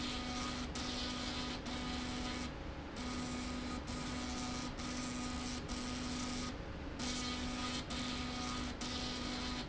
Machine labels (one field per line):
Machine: slide rail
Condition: abnormal